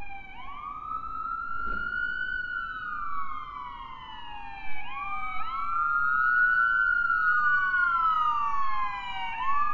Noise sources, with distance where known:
siren

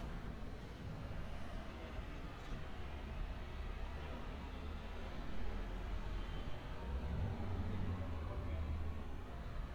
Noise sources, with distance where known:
engine of unclear size

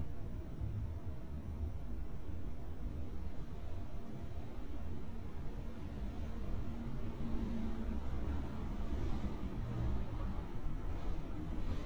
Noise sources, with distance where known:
engine of unclear size

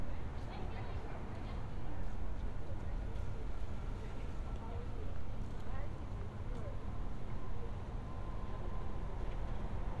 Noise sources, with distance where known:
person or small group talking

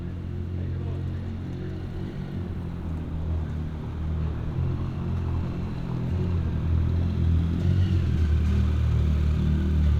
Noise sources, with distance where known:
medium-sounding engine, near

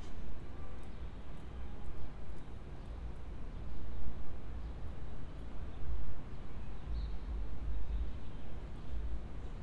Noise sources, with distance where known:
background noise

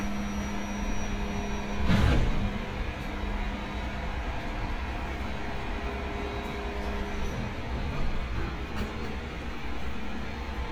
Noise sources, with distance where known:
large-sounding engine, near

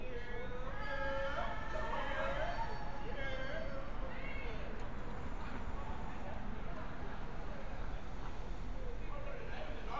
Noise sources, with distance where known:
person or small group shouting, far

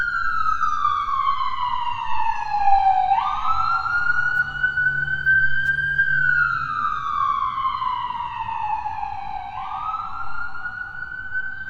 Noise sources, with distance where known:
siren, near

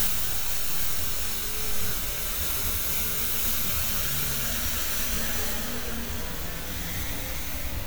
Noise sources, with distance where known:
engine of unclear size

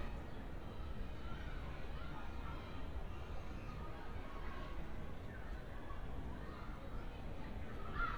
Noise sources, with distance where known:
person or small group shouting, far

